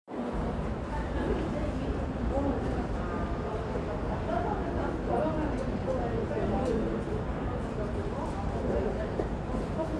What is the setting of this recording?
subway station